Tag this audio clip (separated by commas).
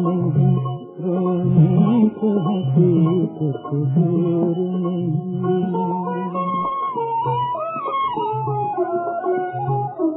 Violin, Musical instrument, Music